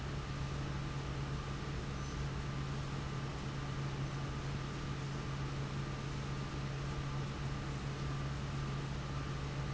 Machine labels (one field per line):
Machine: fan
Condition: abnormal